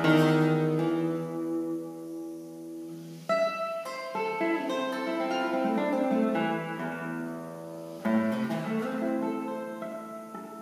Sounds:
Guitar, Strum, Plucked string instrument, Music, Musical instrument

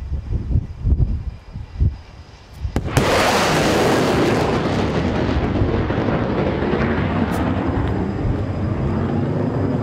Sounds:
airplane flyby

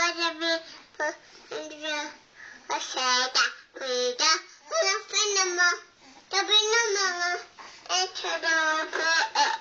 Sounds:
Child singing

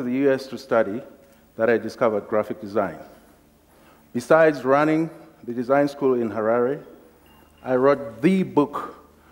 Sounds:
Speech

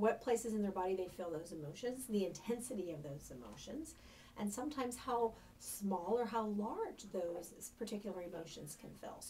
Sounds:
Speech

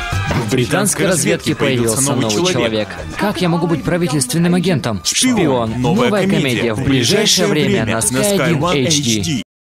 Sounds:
Music, Speech

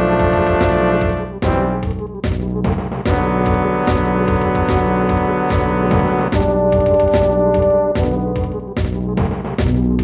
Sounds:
Music

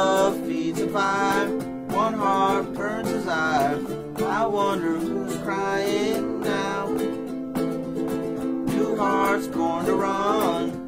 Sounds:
Music, Strum, Plucked string instrument, Guitar, Musical instrument

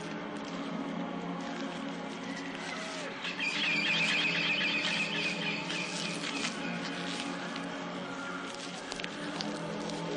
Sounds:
wind rustling leaves

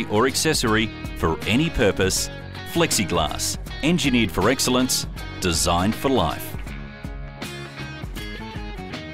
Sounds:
Music, Speech

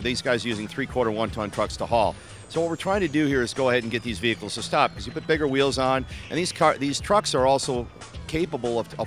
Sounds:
Speech, Music

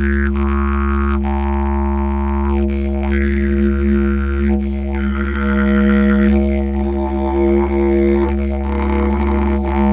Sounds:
playing didgeridoo

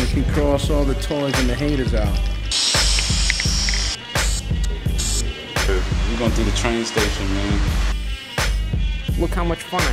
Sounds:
Spray, Music, Speech

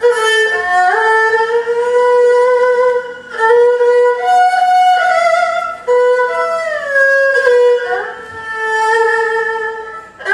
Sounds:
Musical instrument, Music, Violin

